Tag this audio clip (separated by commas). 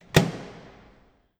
home sounds, Microwave oven